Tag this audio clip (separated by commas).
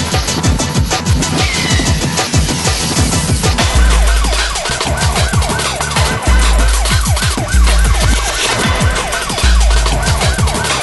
Electronic music, Funk, Disco, Music, Techno